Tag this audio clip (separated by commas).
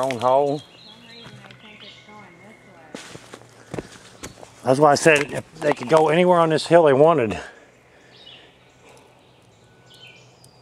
Environmental noise